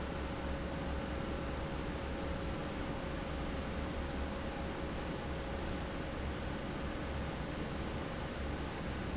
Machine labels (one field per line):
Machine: fan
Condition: normal